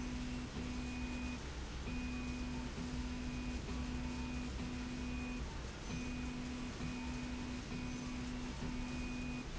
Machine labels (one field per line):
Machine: slide rail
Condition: normal